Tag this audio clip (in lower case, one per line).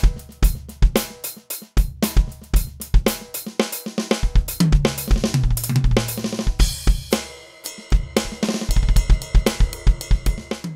music
drum
drum kit
musical instrument